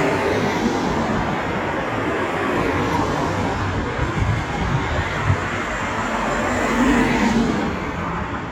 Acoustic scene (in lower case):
street